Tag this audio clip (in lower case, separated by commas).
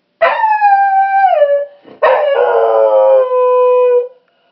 pets, animal, dog